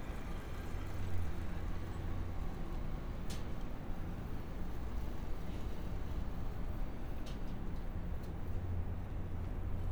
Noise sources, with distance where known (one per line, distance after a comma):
medium-sounding engine, far
non-machinery impact, near